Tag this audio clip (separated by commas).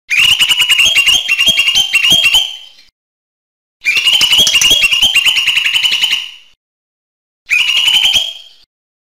Bird